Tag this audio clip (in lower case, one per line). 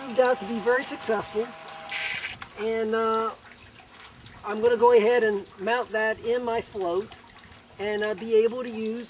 liquid
speech
outside, rural or natural